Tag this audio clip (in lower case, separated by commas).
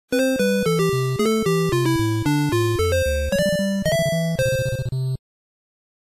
music, video game music